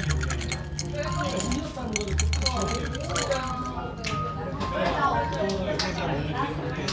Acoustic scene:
crowded indoor space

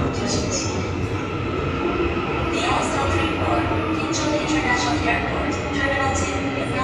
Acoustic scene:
subway station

